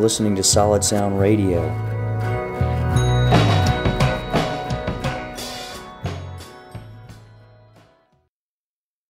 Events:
[0.00, 1.71] male speech
[0.00, 8.27] music

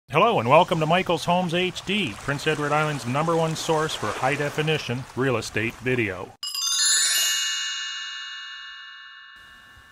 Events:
[0.14, 2.11] male speech
[2.18, 5.03] water
[2.24, 5.04] male speech
[5.12, 6.30] male speech
[6.44, 9.91] music

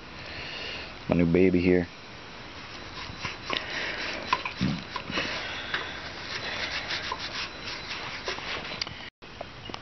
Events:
[1.05, 1.82] male speech
[2.72, 9.05] rub
[4.50, 4.79] human sounds
[6.18, 7.14] breathing
[9.10, 9.81] wind
[9.51, 9.56] bleep
[9.54, 9.64] tick

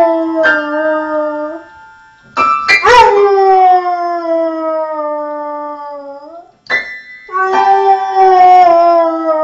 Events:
[6.61, 9.43] music
[7.21, 9.43] howl

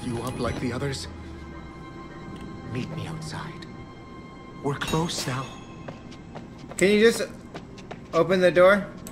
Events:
[0.00, 9.11] music
[0.58, 0.85] alarm
[3.53, 3.61] tick
[4.79, 5.88] generic impact sounds
[8.02, 8.21] surface contact
[8.07, 8.82] male speech

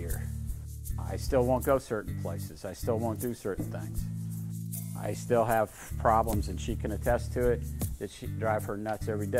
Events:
[0.01, 9.35] music
[0.91, 3.88] man speaking
[4.98, 5.66] man speaking
[5.84, 8.07] man speaking
[8.45, 9.35] man speaking

